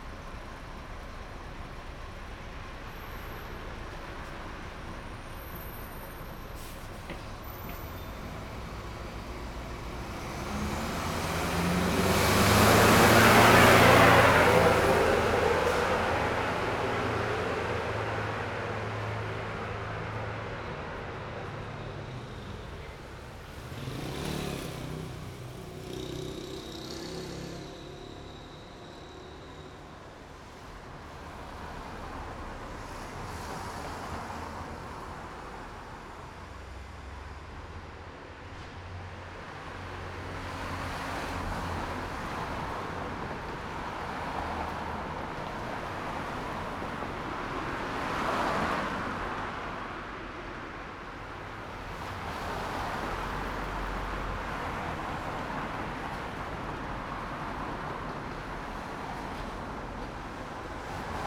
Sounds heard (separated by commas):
car wheels rolling, motorcycle, motorcycle engine accelerating, car, bus engine accelerating, bus compressor, bus, bus engine idling